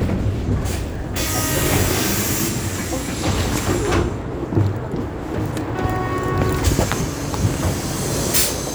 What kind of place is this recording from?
bus